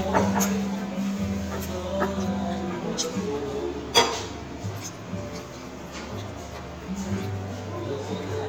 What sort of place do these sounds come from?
restaurant